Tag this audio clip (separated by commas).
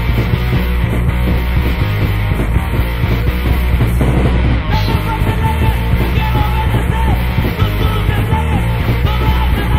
Punk rock, Music, Rock music